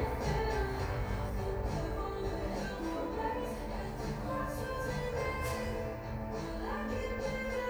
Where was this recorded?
in a cafe